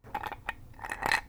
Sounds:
Glass, clink

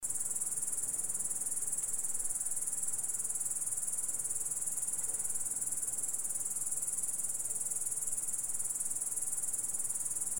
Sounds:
Insect, Cricket, Animal, Wild animals

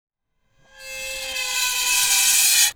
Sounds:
Screech

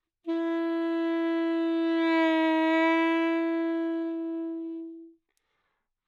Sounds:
Musical instrument, Wind instrument, Music

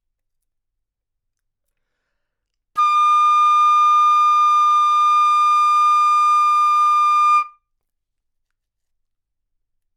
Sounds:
Music, Musical instrument, Wind instrument

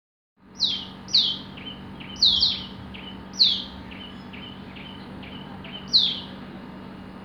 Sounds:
Wild animals, Animal, Bird

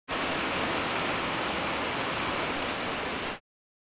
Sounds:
Water

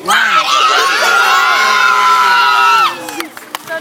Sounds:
Human voice, Cheering, Human group actions, Shout

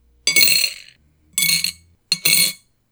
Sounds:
Coin (dropping), home sounds

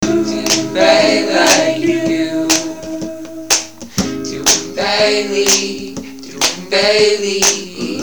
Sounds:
Acoustic guitar, Guitar, Human voice, Music, Plucked string instrument, Musical instrument

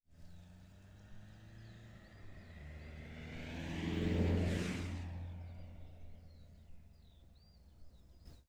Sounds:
Vehicle, Car, Motor vehicle (road)

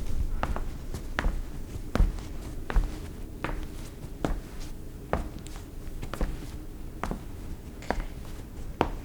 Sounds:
Walk

